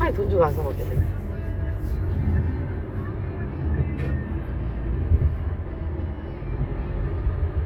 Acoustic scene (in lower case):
car